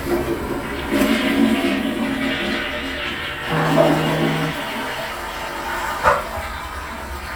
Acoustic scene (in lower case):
restroom